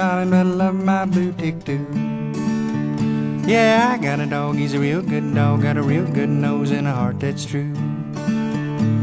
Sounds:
Music

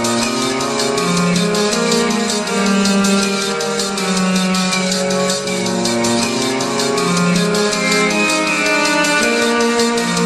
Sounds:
Music

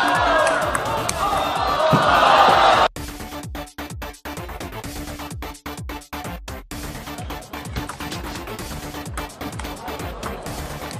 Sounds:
playing table tennis

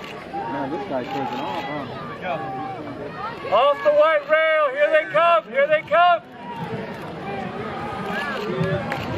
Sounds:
Speech

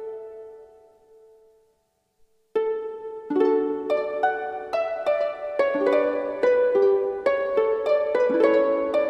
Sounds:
Music

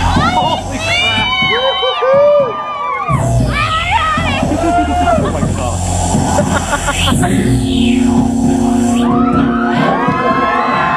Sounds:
Speech, Music

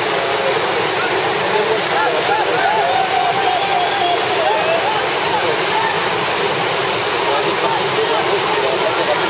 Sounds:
Vehicle, Water vehicle, Speech

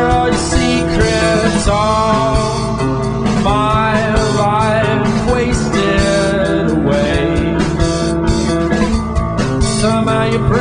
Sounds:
Music, Soul music

